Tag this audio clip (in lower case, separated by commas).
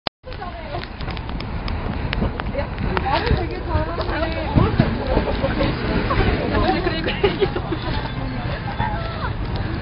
hubbub, outside, urban or man-made, speech